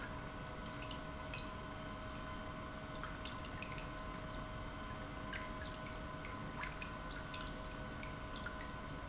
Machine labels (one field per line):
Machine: pump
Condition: normal